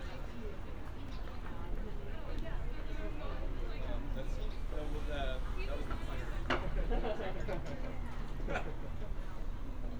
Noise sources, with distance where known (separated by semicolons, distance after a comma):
person or small group talking, far